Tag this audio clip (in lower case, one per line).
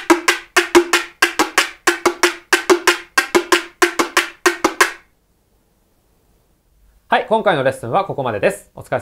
playing guiro